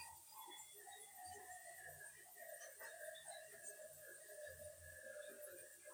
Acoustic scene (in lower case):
restroom